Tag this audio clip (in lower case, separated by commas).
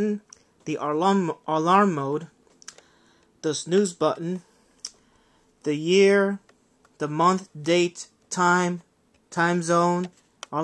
speech